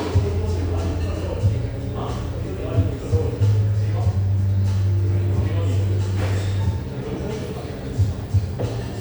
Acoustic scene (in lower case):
cafe